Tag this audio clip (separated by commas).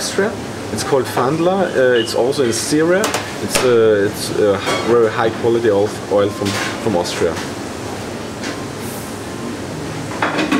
Speech